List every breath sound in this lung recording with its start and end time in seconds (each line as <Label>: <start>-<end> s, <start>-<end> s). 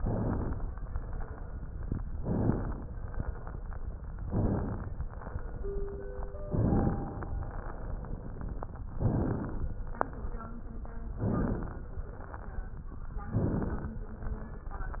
Inhalation: 0.00-0.67 s, 2.22-2.89 s, 4.21-4.88 s, 6.53-7.19 s, 9.03-9.77 s, 11.14-11.88 s, 13.32-14.06 s
Crackles: 0.00-0.67 s, 2.22-2.89 s, 4.21-4.88 s, 6.53-7.19 s, 9.03-9.77 s, 11.14-11.88 s, 13.32-14.06 s